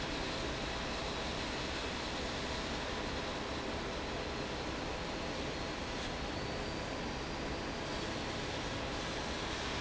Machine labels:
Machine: fan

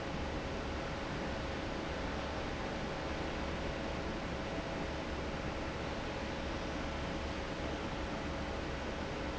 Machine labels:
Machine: fan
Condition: normal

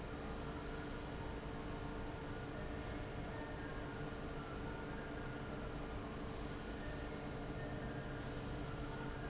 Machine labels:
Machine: fan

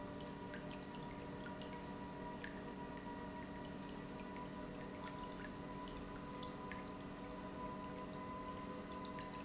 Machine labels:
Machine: pump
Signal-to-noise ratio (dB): 6 dB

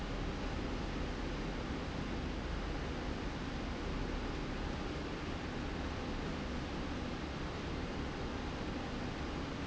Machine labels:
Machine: slide rail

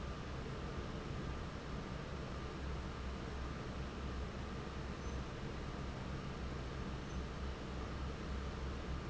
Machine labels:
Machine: fan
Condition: normal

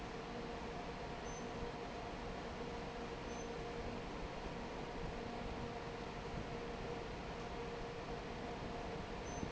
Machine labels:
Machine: fan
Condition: normal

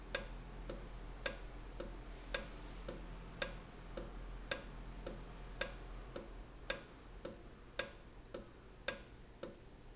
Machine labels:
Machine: valve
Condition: normal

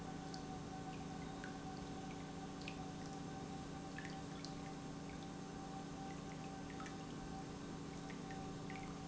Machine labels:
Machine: pump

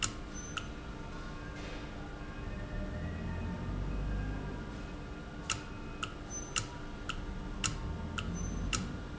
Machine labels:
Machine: valve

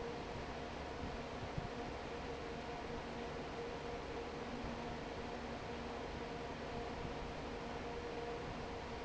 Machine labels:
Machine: fan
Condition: normal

